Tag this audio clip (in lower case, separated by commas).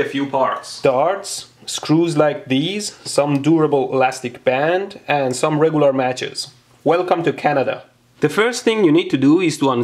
lighting firecrackers